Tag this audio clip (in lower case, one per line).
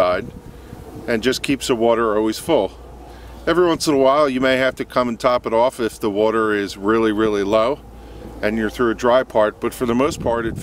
speech